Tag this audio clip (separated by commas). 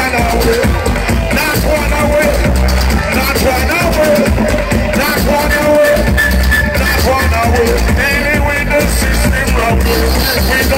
Music